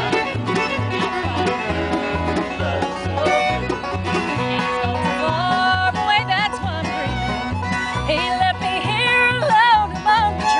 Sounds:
blues, music

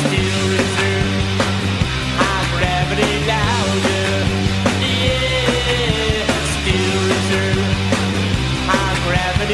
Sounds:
music

